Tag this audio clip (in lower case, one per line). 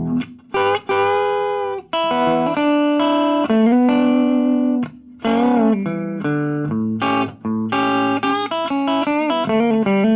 music
musical instrument
guitar
plucked string instrument
electric guitar